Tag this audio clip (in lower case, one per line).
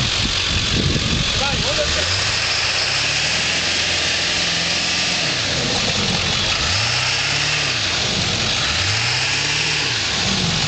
tire squeal
vehicle
speech
truck